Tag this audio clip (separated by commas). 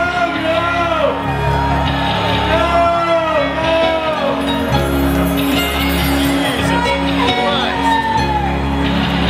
Music, Speech